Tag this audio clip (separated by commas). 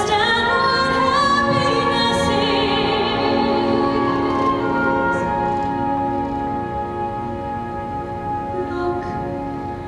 Singing, Opera